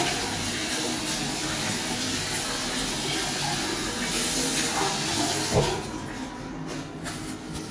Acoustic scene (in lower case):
restroom